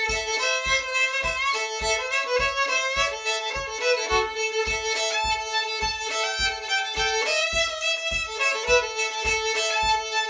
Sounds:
Musical instrument, fiddle, Music

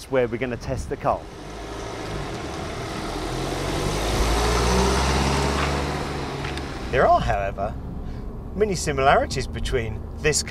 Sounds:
Speech, Motor vehicle (road), Car, Car passing by, Vehicle

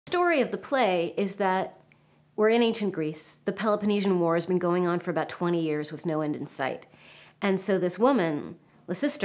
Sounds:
Female speech, Speech

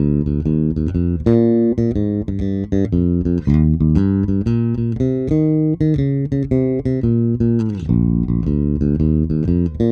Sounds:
Music

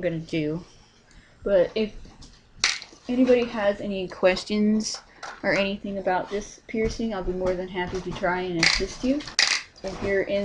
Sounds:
Speech, inside a small room

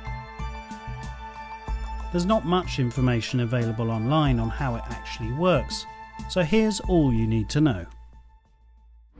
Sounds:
Music, Speech

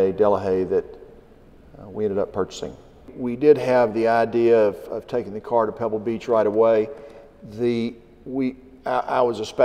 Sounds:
Speech

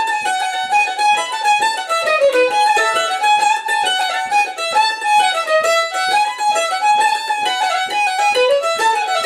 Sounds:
Musical instrument, Violin, Music

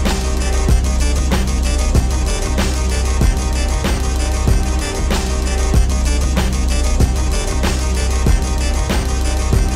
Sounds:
Music

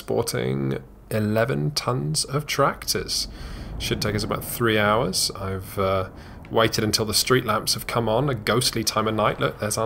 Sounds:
Speech

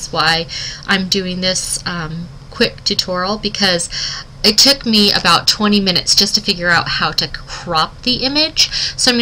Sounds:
Speech

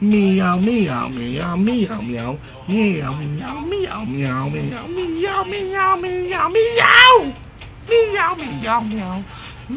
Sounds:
Speech

